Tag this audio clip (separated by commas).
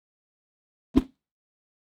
Whoosh